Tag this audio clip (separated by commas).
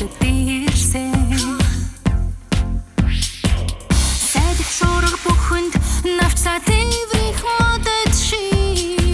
Music